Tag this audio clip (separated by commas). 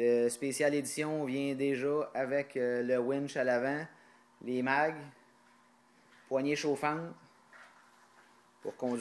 Speech